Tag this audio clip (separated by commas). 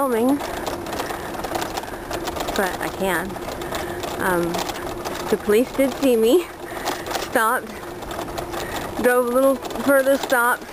Vehicle, Speech, Bicycle